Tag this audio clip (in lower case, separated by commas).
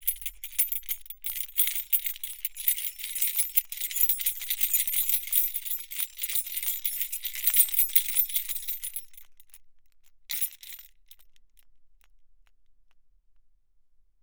keys jangling, home sounds